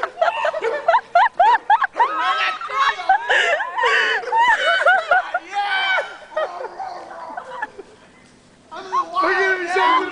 People are laughing and a dog is barking